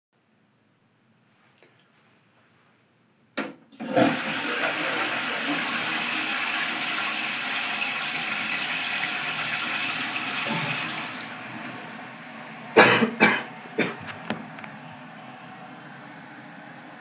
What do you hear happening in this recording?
I flush the toilet and cough afterwards.